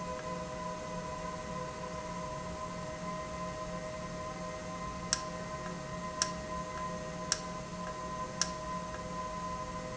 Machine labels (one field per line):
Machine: valve